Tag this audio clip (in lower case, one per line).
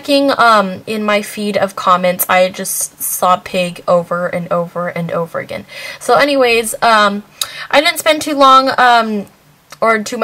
speech